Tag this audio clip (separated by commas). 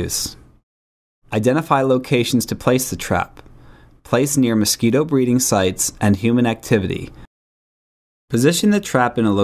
Speech